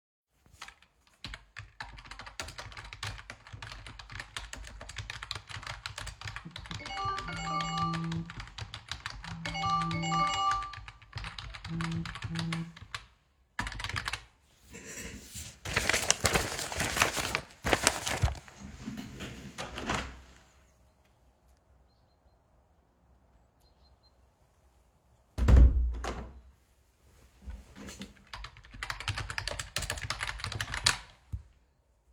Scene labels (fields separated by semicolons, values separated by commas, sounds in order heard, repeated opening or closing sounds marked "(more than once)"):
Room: living room; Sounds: keyboard typing, phone ringing, window (more than once)